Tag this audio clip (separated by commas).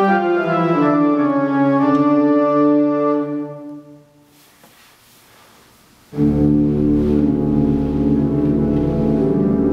playing electronic organ